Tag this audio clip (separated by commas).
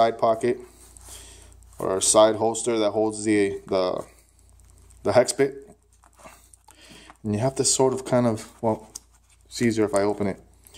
Speech